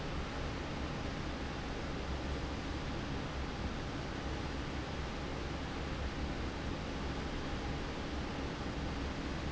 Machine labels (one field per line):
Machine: fan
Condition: normal